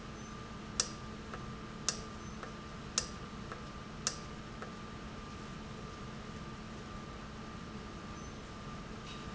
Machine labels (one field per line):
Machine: valve